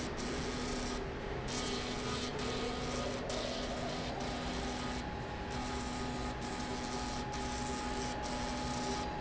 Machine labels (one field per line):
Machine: slide rail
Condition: abnormal